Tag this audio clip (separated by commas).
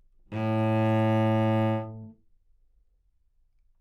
Music, Bowed string instrument, Musical instrument